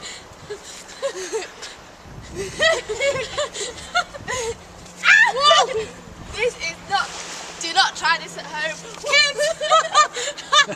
Two females laughing before an exclamation and speaking